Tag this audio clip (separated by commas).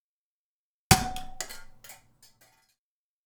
Thump